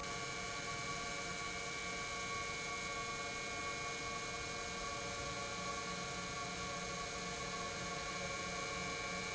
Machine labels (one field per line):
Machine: pump